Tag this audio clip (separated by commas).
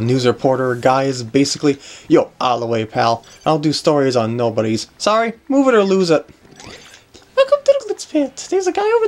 Speech